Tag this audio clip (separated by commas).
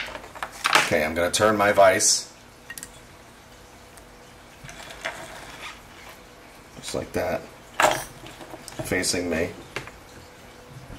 Speech